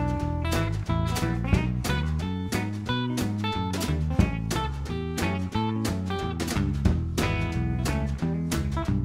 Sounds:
Music, Speech

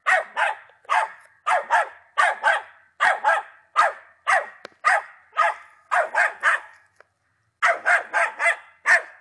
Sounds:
Dog, Animal

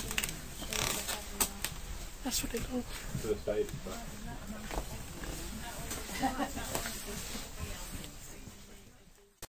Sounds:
Speech

